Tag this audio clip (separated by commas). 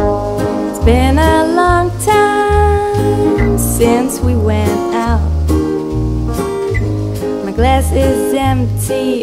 Music